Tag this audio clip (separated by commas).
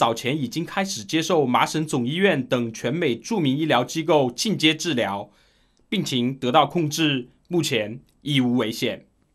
Speech